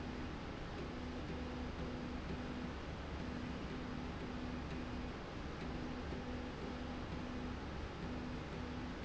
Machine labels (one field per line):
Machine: slide rail